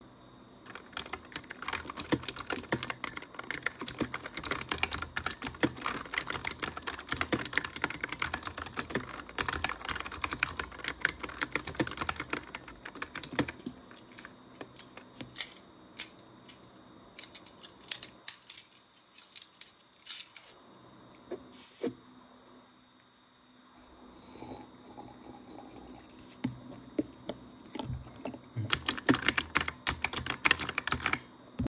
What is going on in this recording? I was working at my computer, when suddenly unfocused and started playing with my keychain. Then I drank some water and continued working